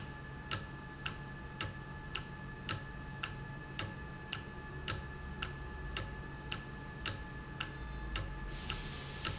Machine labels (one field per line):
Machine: valve